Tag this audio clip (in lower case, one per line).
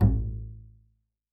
music
musical instrument
bowed string instrument